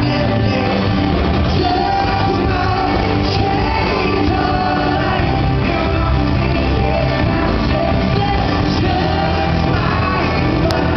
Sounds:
inside a large room or hall, singing, music

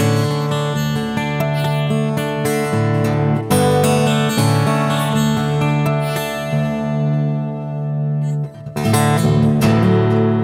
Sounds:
music

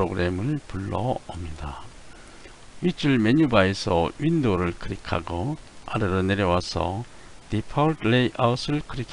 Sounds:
speech

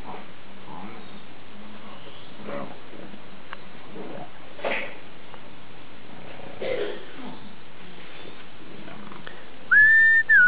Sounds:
dog, speech, animal, pets

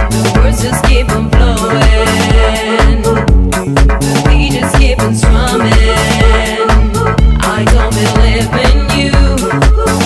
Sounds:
music, afrobeat

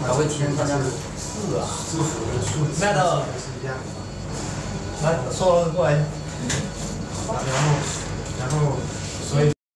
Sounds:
speech

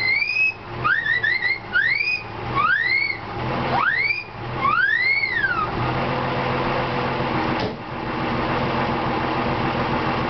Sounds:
car, engine, vehicle

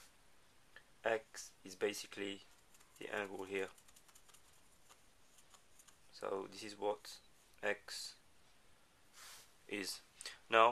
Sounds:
speech

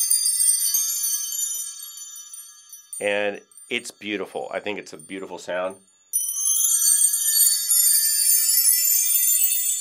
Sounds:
wind chime

